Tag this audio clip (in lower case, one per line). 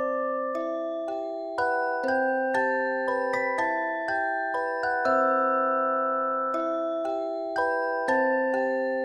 music